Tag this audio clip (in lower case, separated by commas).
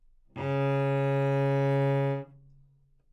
bowed string instrument, music, musical instrument